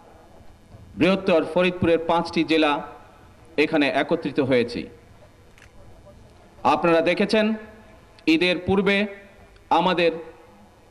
A man speaks in a non-expressive manner